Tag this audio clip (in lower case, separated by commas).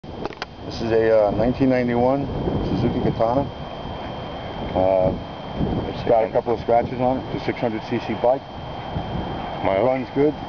speech, outside, urban or man-made